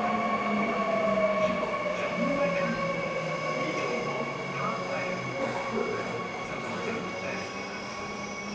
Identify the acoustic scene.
subway station